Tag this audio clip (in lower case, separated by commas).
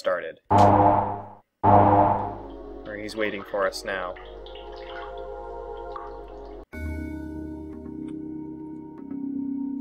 music, speech